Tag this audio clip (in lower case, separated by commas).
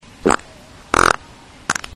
fart